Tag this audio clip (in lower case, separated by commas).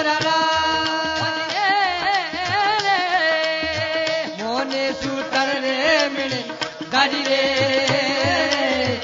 folk music, music